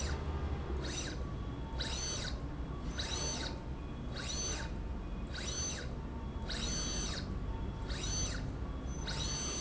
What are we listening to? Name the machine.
slide rail